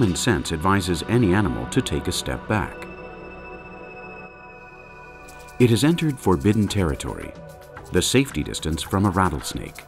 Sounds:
speech, music

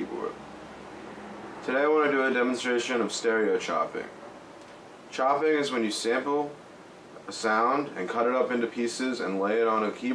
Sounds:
speech

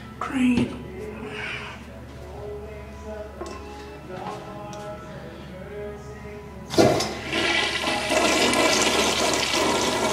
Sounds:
toilet flush, speech, music

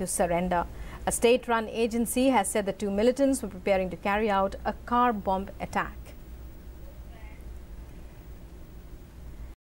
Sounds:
speech

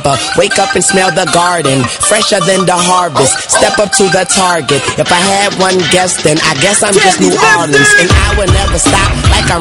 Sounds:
dubstep, electronic music, music

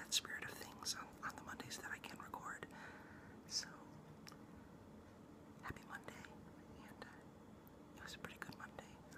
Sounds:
speech

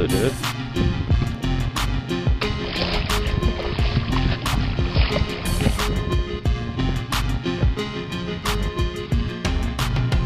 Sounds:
music, speech

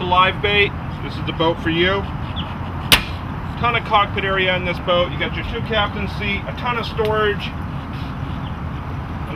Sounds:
speech

